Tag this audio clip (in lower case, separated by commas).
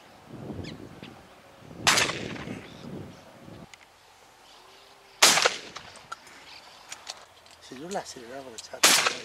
bird, tweet, bird vocalization